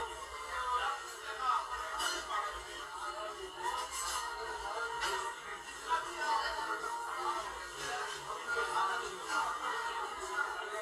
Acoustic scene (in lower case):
crowded indoor space